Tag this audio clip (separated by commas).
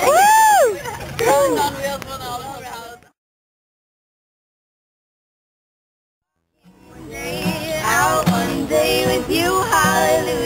Music, Speech